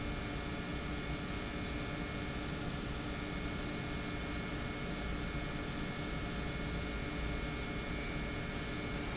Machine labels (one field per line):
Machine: pump